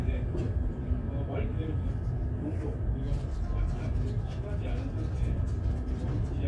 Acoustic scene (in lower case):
crowded indoor space